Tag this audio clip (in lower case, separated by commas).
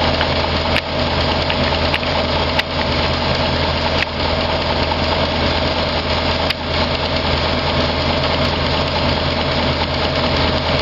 engine